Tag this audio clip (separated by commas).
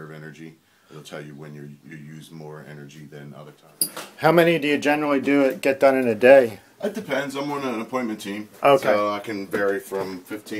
Speech